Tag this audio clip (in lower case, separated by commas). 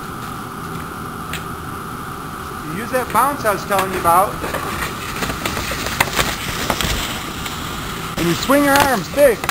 skiing